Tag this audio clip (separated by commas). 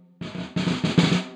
Snare drum, Music, Percussion, Drum, Musical instrument